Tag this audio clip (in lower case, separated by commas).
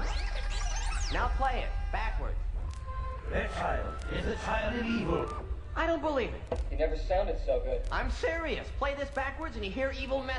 music, speech